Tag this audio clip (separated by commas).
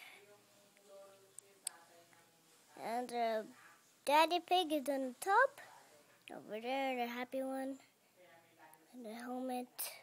Speech